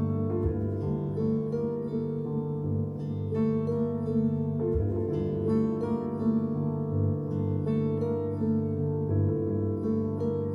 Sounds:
Harp

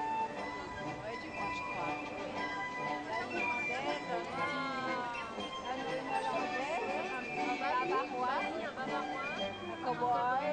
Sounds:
Music, Speech

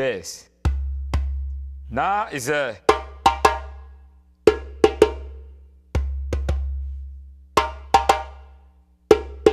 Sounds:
playing djembe

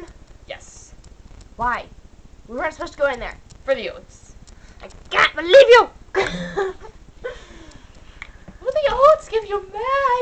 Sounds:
Speech

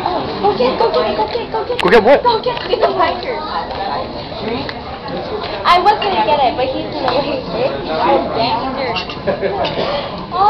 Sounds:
Speech

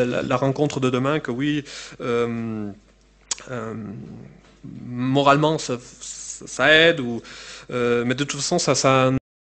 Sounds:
Speech

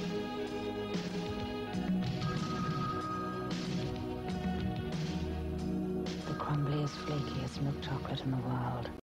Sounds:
Music, Speech

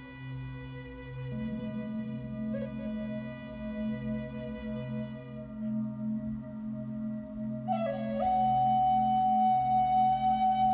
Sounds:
singing bowl

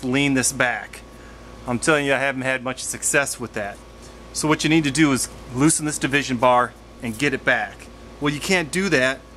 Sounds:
Speech

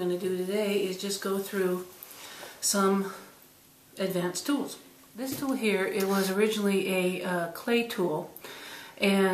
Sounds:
Speech

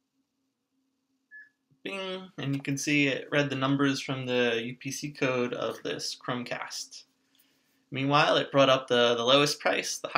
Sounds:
Speech

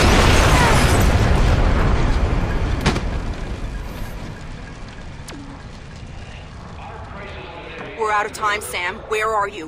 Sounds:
Speech

